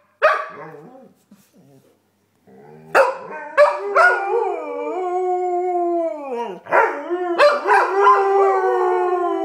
Dog barking and howling